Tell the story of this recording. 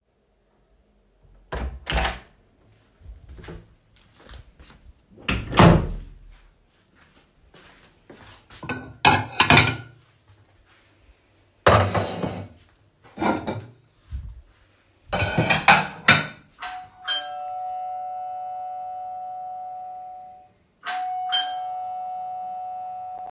I opened the door and stepped in the kitchen walked to the sink and began placing some dishes in the sink and suddenly the door bell rang.